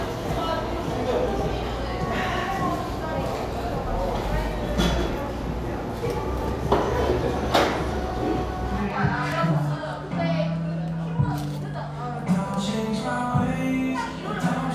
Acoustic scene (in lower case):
cafe